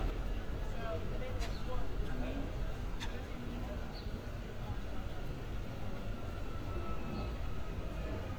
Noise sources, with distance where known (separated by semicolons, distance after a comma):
siren, far; person or small group talking, near